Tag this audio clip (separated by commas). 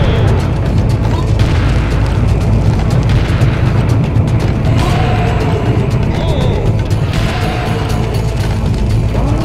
Music, Boom